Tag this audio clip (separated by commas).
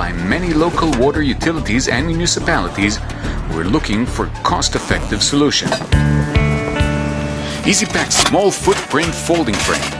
Speech, Music